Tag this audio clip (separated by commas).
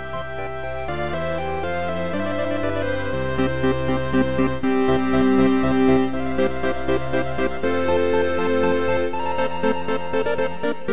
Music, Theme music